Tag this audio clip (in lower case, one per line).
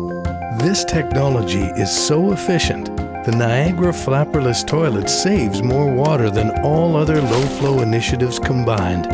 music
speech